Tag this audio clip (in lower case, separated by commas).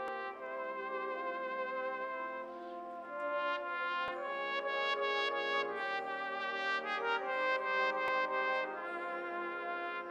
playing cornet